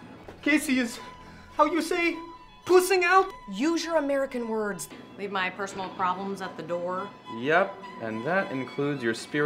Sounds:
Music, Speech

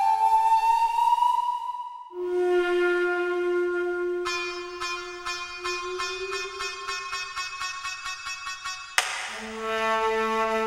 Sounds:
Flute

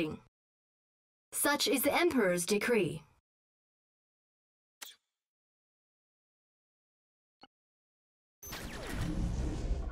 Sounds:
Speech, Speech synthesizer

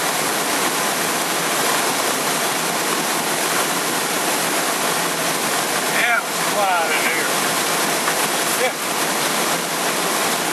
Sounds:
Vehicle, Aircraft, Speech

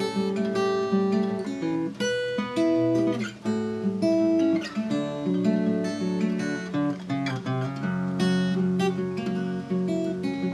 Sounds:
Guitar, Music, Plucked string instrument, Acoustic guitar, Musical instrument

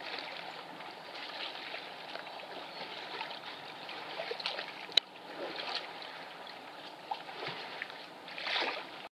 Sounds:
Boat, Vehicle

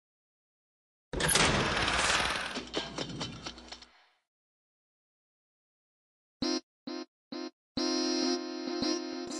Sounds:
Music

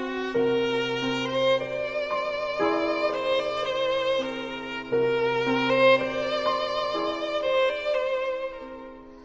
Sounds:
Music

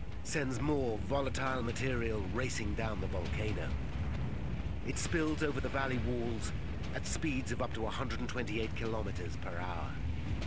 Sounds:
Speech

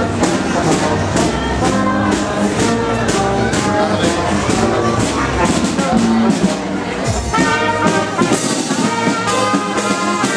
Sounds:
Speech, Music

